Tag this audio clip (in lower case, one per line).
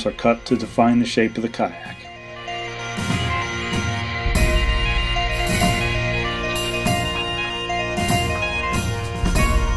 speech
music